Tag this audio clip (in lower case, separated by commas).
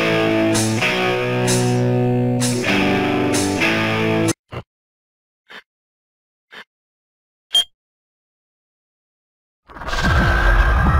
music